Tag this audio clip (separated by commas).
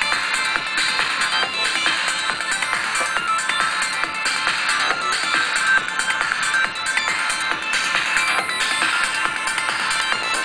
Music